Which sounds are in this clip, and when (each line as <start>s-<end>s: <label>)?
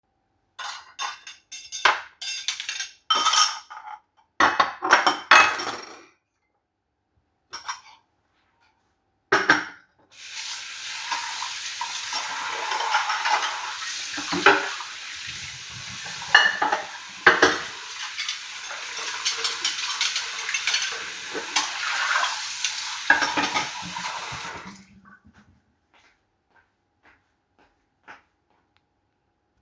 0.5s-6.1s: cutlery and dishes
7.5s-8.0s: cutlery and dishes
9.3s-9.9s: cutlery and dishes
10.2s-25.7s: running water
11.8s-14.8s: cutlery and dishes
16.3s-23.7s: cutlery and dishes
25.2s-28.9s: footsteps